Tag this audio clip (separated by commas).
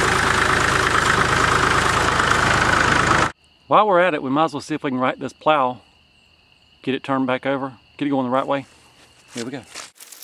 Speech, Vehicle, outside, rural or natural